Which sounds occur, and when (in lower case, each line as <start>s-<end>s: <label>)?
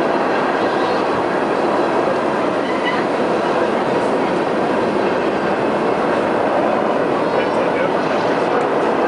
0.0s-9.0s: train
2.6s-3.0s: train wheels squealing
7.3s-8.0s: male speech